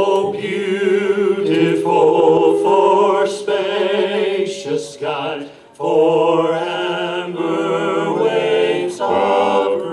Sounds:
Male singing, Choir

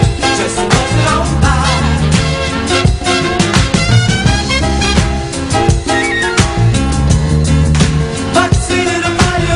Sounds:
Music, Basketball bounce

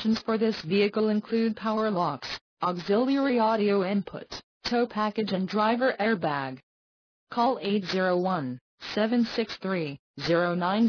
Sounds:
Speech

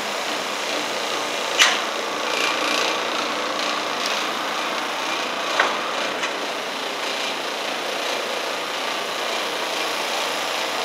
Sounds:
Vacuum cleaner

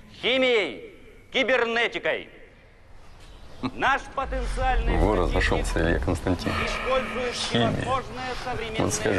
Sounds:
Speech

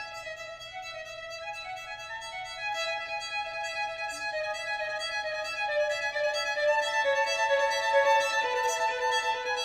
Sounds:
Music, fiddle, Musical instrument

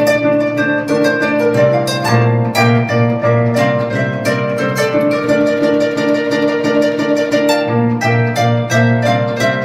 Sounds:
Harp, Plucked string instrument, Musical instrument, Music

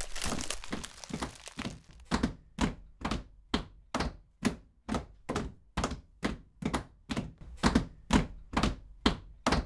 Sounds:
Thump

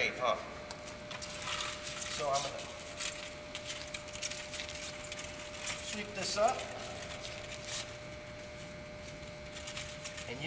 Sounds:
Speech

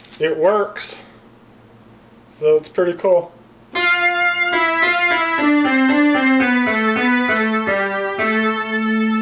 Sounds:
Musical instrument, Music, Speech

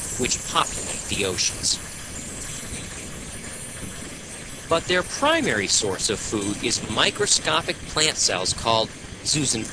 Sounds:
Speech

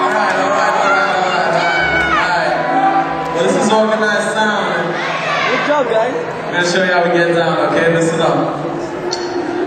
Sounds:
Crowd, Speech, Music

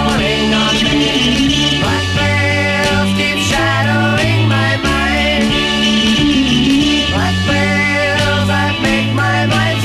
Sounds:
Music

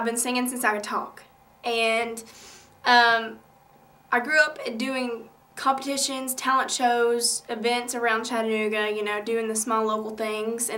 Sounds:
Speech

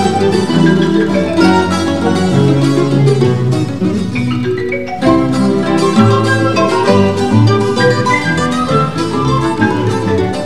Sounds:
Guitar, Musical instrument, Flamenco, Music

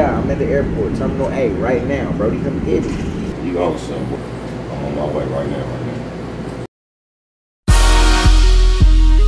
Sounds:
Speech, Music, Theme music

